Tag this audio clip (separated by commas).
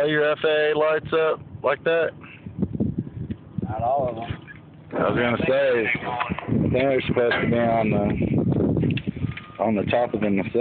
Speech